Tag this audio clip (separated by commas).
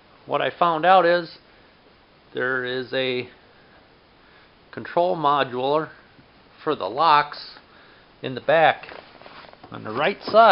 Speech